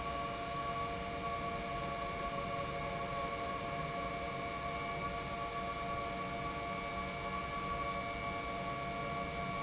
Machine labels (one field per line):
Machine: pump